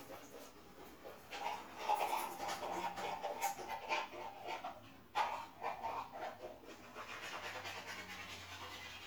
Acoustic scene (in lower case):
restroom